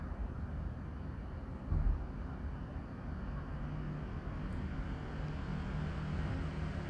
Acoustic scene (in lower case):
residential area